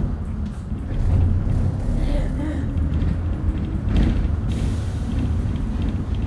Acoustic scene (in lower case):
bus